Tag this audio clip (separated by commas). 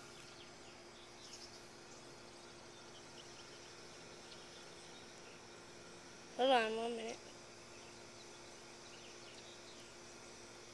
Environmental noise, Speech